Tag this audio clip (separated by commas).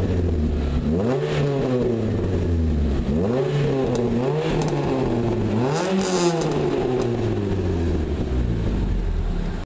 Sound effect